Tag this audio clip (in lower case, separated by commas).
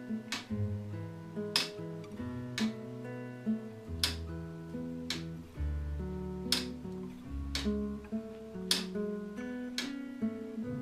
music, tick-tock